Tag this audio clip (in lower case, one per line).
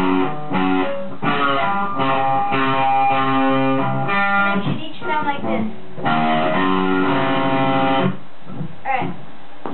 guitar
plucked string instrument
musical instrument
speech
strum
music